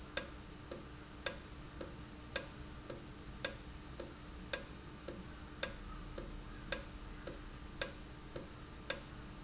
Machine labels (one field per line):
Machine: valve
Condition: normal